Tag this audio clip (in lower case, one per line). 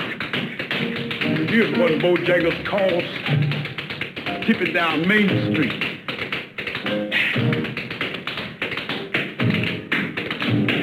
tap
speech
music